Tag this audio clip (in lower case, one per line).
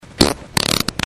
fart